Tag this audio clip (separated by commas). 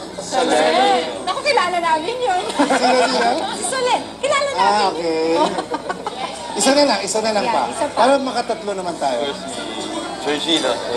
Speech, Television